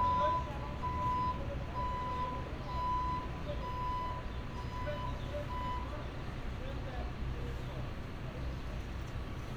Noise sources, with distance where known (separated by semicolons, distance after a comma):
reverse beeper, near